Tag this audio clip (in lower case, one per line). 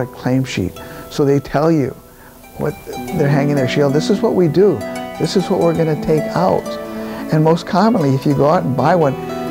speech
music